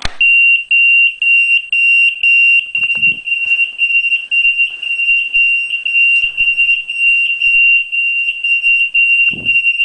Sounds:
Fire alarm

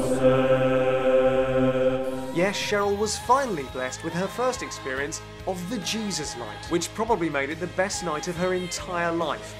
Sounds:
Chant, Singing

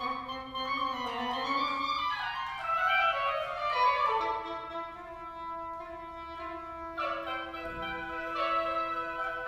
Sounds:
Music, Traditional music

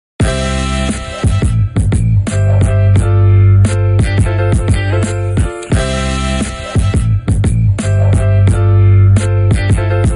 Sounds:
Music

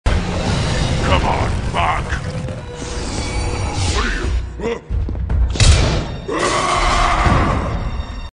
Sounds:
Music, Speech

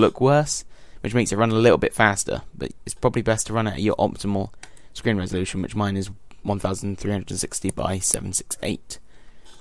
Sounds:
Speech

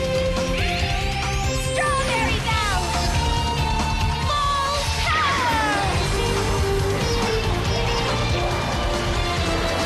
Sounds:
Speech, Music

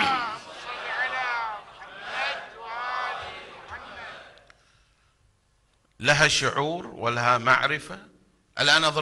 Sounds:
Speech

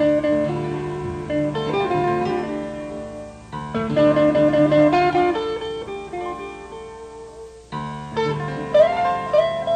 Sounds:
Jazz, Music

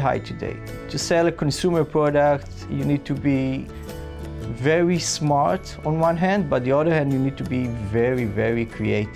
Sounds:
Music, Speech

